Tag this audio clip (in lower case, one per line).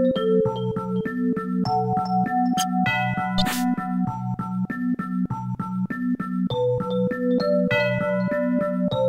synthesizer